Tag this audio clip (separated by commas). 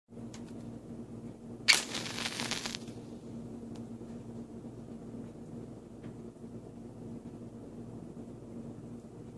Silence